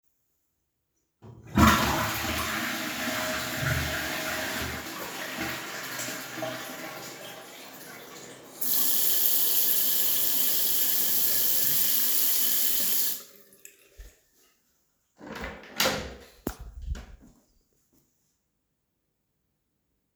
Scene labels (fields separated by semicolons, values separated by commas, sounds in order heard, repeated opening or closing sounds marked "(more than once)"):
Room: bathroom; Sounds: toilet flushing, running water, door